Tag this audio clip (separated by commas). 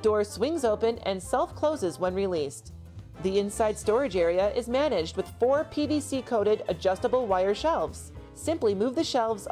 Music, Speech